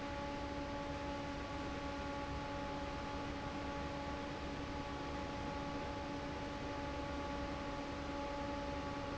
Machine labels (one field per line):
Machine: fan